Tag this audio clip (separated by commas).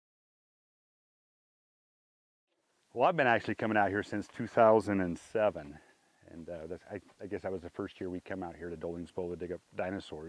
Speech, outside, rural or natural